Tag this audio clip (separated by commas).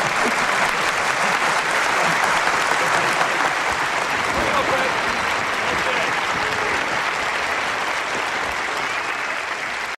Speech